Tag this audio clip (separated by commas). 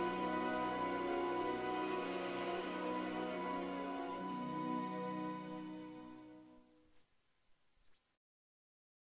Music